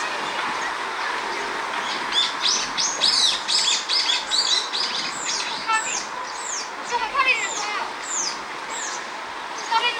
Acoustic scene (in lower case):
park